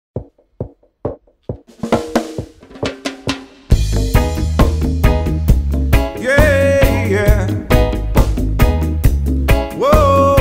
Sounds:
snare drum, drum, rimshot, percussion, bass drum, drum kit

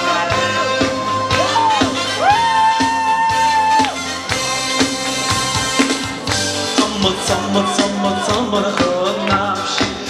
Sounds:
rock and roll, music of latin america, singing

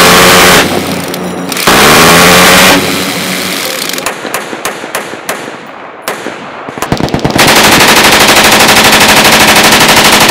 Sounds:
machine gun shooting

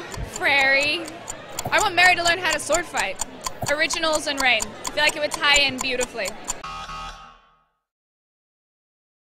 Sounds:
speech, tick-tock

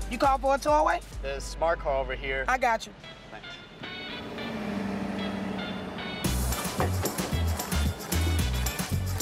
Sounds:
rapping

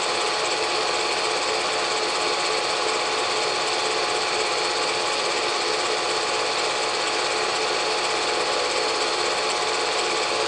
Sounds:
train, rattle

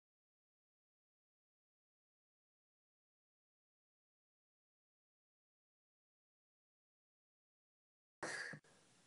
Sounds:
speech, inside a small room, silence

